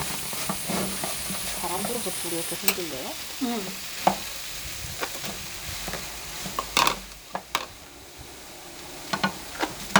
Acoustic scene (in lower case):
kitchen